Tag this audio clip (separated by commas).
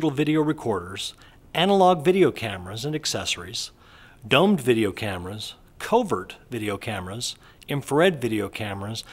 Speech